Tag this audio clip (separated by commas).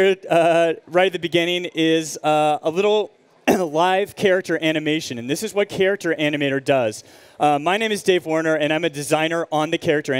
Speech